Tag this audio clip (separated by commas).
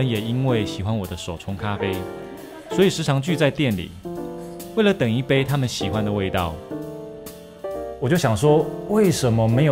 Speech, Music